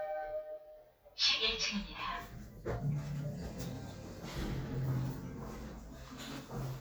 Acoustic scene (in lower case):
elevator